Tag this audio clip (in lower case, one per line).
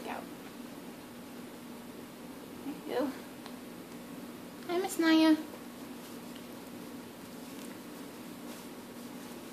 speech